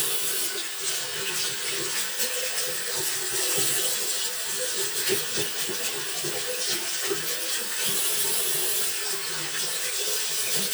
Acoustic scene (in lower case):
restroom